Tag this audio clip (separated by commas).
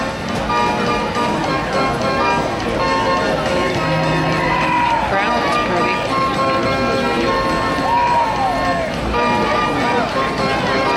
Clip-clop, Music, Horse, Speech